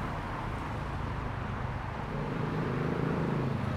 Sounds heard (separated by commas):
motorcycle engine idling, motorcycle engine accelerating, car, motorcycle, car wheels rolling